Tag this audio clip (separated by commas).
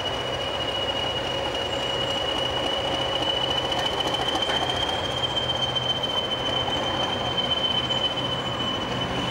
Vehicle, Rail transport, Train